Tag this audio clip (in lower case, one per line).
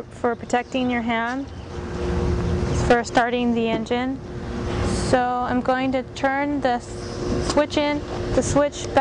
speech